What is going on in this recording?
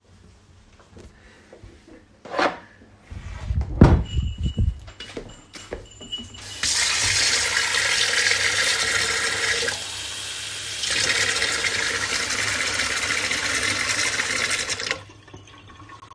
I took a glass out of a drawer and poured my self a glass of water